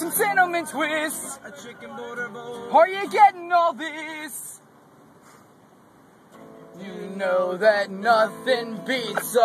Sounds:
Speech, Music

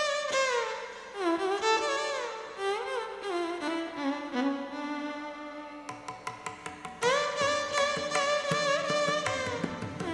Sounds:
Music

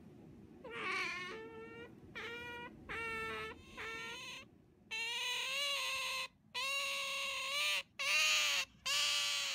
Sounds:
otter growling

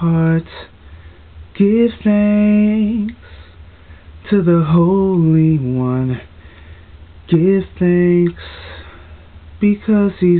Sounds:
Male singing

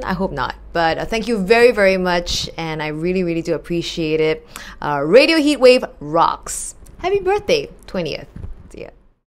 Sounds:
Speech, monologue, woman speaking

